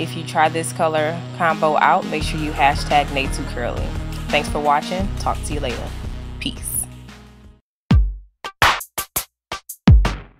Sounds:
Music, Speech

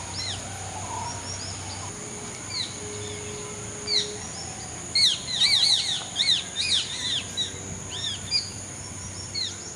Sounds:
Bird

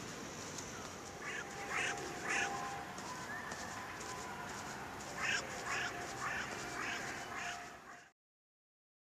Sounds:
outside, rural or natural

